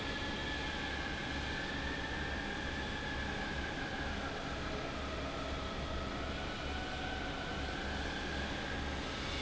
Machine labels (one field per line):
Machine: fan